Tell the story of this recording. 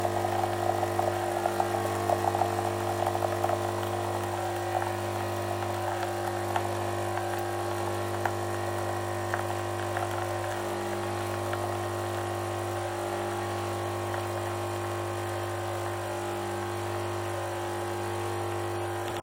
Coffee machine working